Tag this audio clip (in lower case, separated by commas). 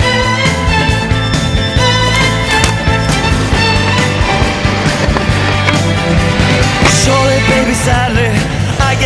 skateboard, music